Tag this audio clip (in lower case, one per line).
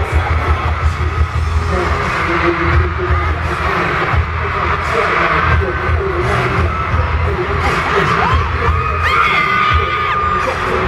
independent music
music
pop music